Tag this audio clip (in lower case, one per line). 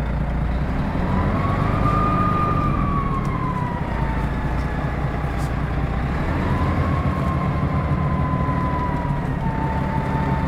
vehicle